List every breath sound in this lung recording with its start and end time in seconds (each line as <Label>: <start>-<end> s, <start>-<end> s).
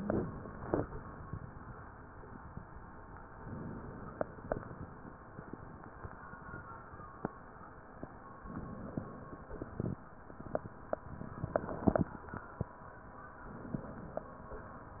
Inhalation: 3.44-4.52 s, 8.41-9.53 s, 13.49-14.51 s